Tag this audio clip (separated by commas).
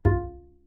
Musical instrument, Music, Bowed string instrument